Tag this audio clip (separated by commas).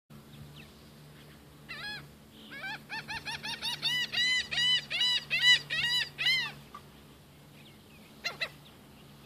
Honk, Animal